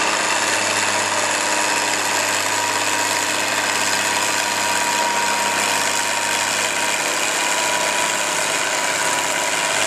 Vibration of a vehicle not moving